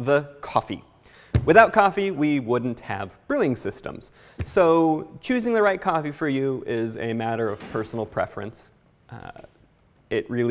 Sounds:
Speech

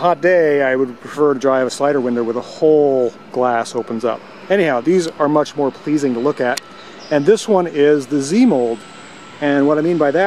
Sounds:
Speech

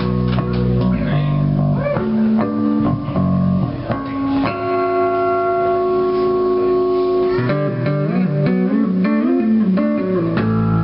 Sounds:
Music, Speech, Tapping (guitar technique)

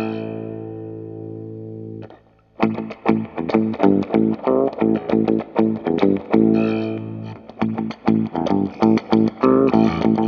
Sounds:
Guitar, Effects unit, Electric guitar, Plucked string instrument, Musical instrument, Music

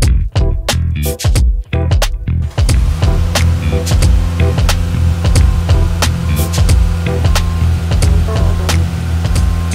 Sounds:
Music

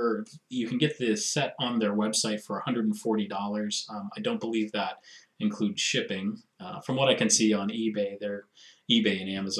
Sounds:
Speech

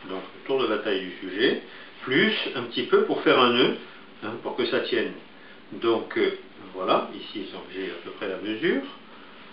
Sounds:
Speech

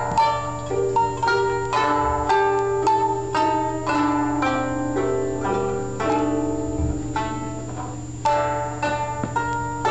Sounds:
Music, Tender music

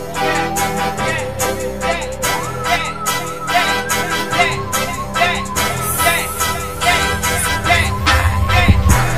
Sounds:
Disco, Music

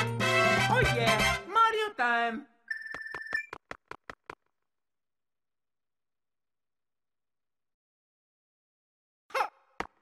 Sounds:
Music, Speech

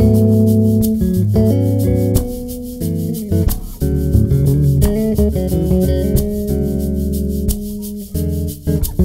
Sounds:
Plucked string instrument, Music, Bass guitar, Musical instrument, Guitar

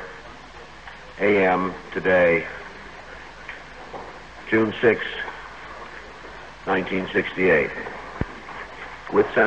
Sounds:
Speech

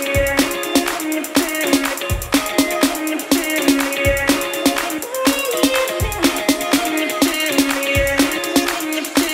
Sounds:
Music

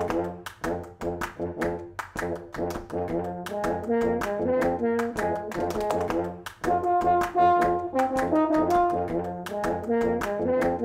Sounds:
Brass instrument, Music

